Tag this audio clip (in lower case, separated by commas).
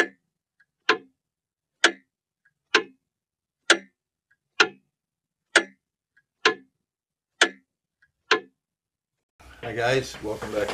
speech, clock